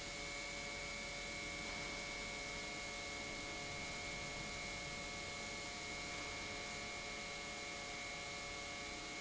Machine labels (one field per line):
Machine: pump